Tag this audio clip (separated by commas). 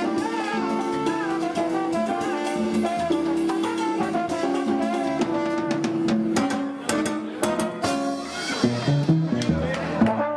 Music, Flamenco, Speech